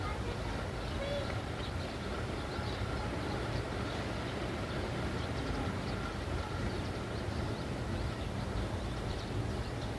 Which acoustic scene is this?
residential area